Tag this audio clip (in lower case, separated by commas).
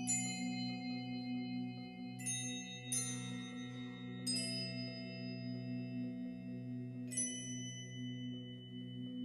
music, vibraphone, musical instrument